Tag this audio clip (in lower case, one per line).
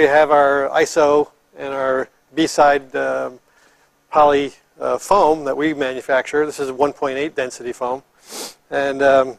speech